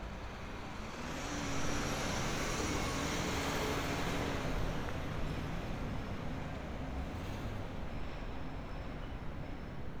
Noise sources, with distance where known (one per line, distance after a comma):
medium-sounding engine, near